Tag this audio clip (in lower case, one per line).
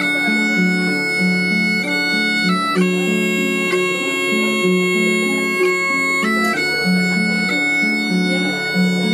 playing bagpipes